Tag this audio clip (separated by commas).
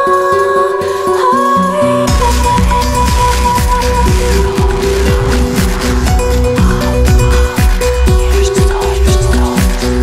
Electronic music, Music